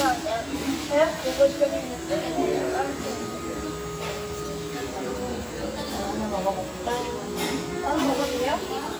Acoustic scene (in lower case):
restaurant